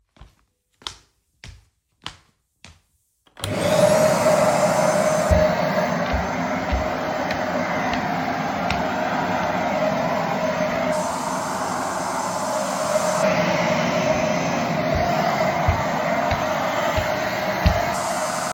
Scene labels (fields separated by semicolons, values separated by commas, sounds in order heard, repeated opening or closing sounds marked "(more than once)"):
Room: living room; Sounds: footsteps, vacuum cleaner